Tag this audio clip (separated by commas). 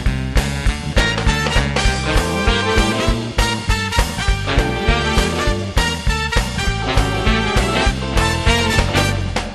Music